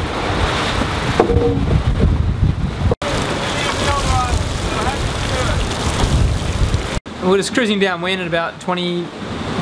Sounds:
Wind noise (microphone), Speech

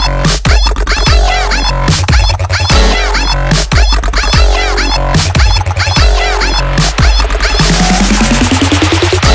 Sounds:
Dubstep, Music

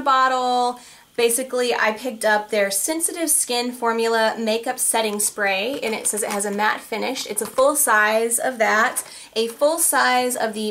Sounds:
Speech

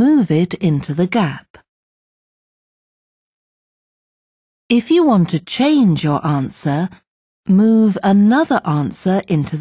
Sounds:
Speech

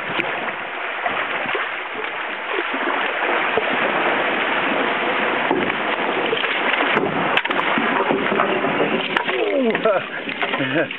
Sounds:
Boat, Vehicle, Splash

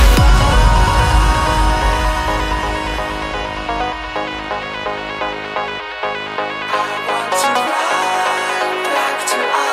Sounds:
Music

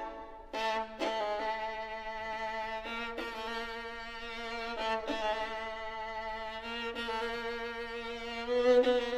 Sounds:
fiddle, Violin, Music, Musical instrument

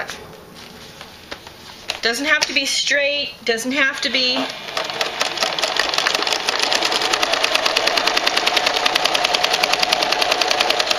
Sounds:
Speech, Sewing machine, inside a small room

